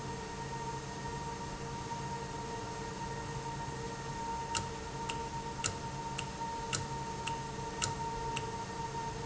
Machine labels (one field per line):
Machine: valve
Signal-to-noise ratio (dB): -6 dB